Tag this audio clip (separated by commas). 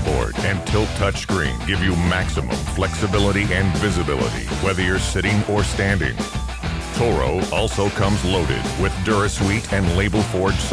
Music, Speech